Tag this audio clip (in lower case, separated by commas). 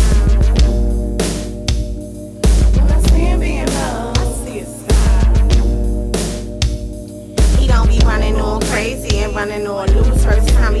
music